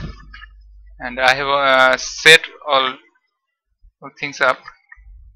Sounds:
speech

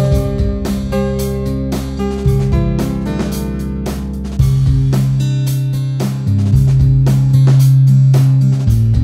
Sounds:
music

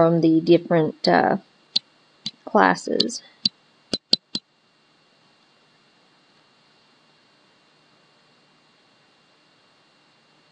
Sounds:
speech

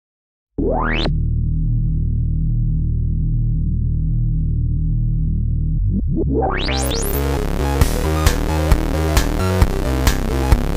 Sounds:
music

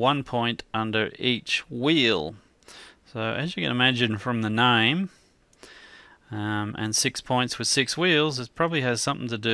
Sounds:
speech

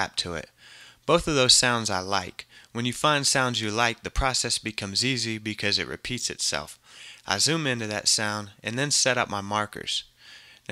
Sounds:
speech

